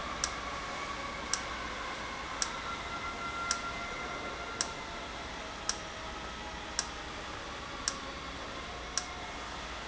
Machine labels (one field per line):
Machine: valve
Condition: normal